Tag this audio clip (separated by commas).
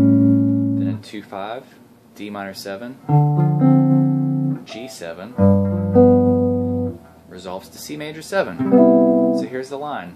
Music, Strum, Plucked string instrument, Musical instrument, Guitar, Electric guitar, Speech